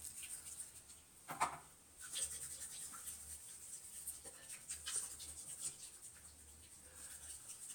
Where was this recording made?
in a restroom